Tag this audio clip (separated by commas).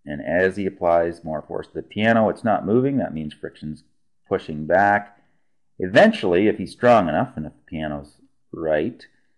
Speech